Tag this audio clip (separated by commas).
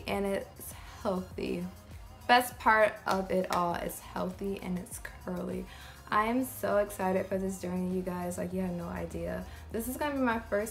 Speech